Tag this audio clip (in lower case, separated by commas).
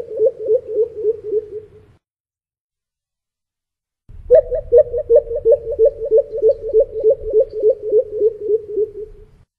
bird, bird song